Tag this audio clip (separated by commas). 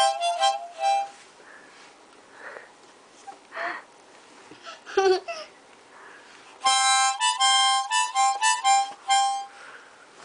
playing harmonica